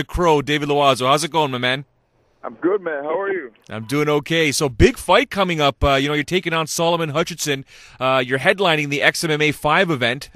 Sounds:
Speech

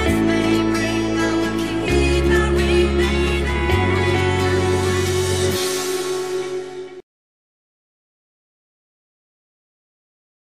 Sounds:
Music

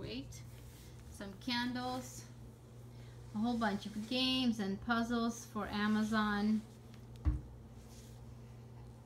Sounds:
Speech

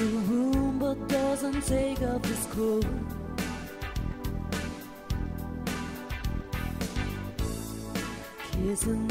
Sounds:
Music

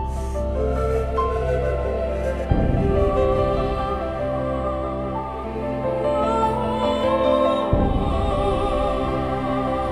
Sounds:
Music

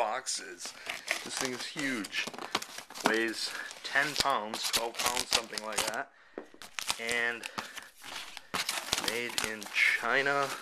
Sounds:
Speech

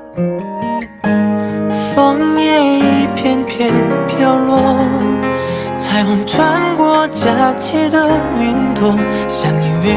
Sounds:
Music, Independent music

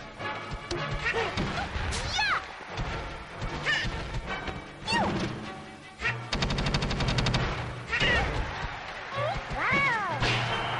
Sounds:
Speech, Music

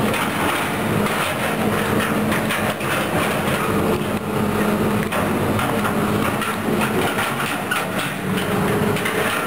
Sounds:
outside, urban or man-made, Vehicle

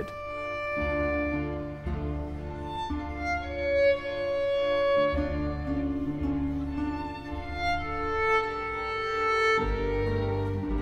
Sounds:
Music, fiddle, Bowed string instrument, Wedding music, Musical instrument, Classical music

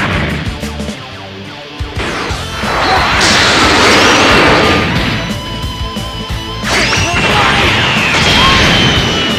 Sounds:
Music

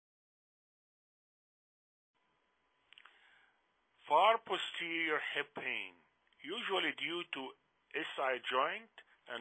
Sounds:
people coughing

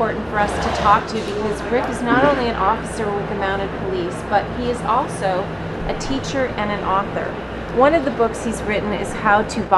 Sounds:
Speech

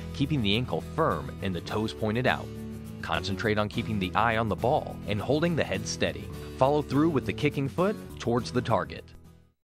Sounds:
Speech, Music

